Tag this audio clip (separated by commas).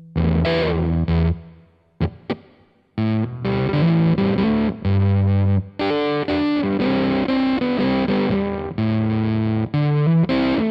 Music, Distortion